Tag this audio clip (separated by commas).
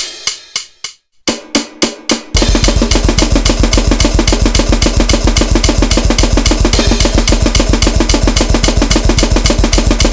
Music